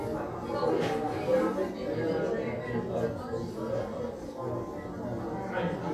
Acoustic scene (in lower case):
crowded indoor space